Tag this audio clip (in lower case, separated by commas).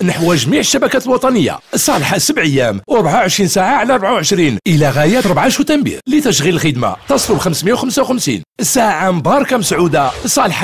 speech